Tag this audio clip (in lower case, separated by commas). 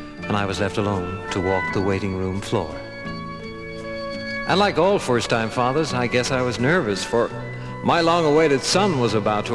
speech, music